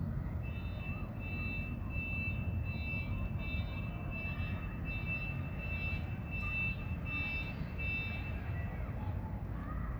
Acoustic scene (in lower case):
residential area